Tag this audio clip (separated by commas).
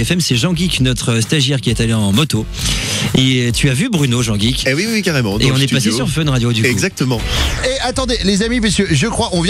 Music, Speech